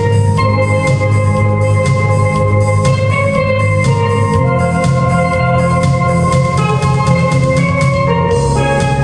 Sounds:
Music

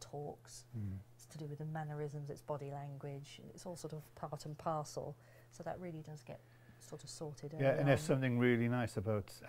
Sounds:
Speech

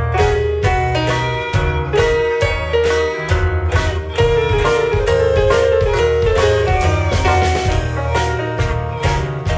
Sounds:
Steel guitar, Music

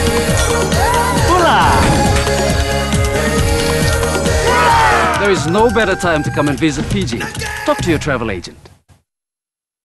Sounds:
Music, Speech

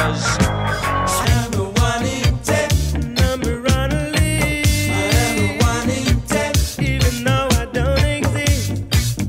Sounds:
Ska, Music

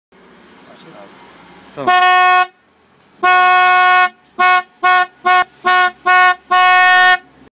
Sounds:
Speech

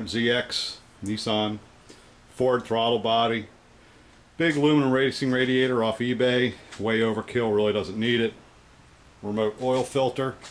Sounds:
Speech

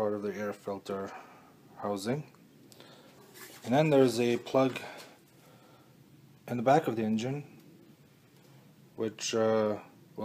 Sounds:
Speech

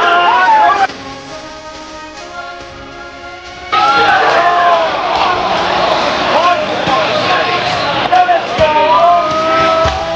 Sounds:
Cheering, Music

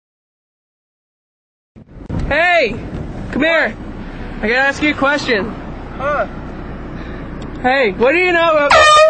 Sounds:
Speech, truck horn, outside, urban or man-made

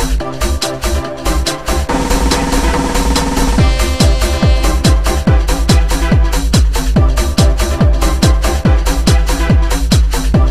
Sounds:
Electronic music, Trance music, Electronic dance music, Music

